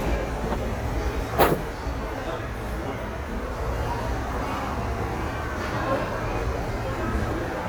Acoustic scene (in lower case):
subway station